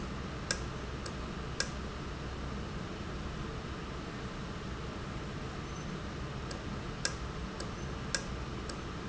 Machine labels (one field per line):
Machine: valve